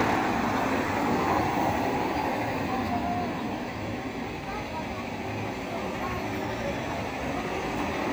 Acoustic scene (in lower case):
street